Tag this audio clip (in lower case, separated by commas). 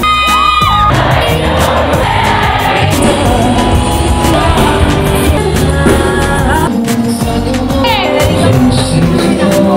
music, soundtrack music